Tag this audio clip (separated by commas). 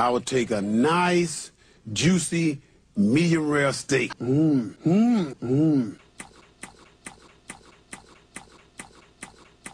Speech